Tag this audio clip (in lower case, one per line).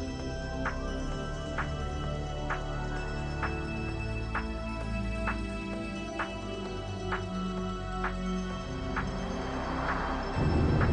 motor vehicle (road)
car
music
vehicle